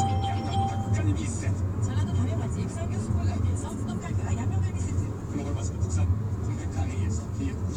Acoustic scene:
car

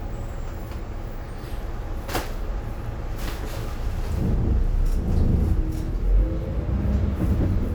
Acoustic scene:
bus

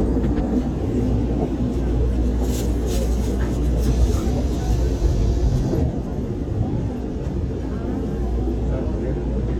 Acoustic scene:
subway train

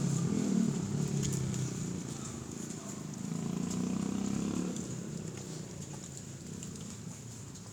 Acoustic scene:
residential area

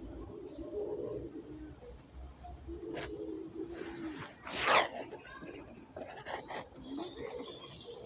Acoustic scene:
residential area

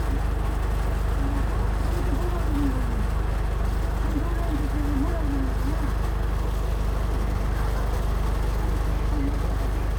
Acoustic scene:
bus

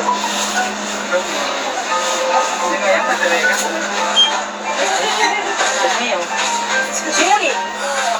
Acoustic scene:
crowded indoor space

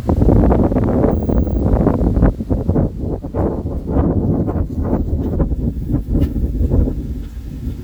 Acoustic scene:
park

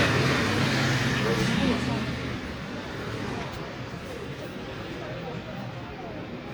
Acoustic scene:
residential area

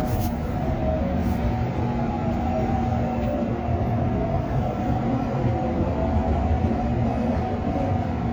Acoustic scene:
subway train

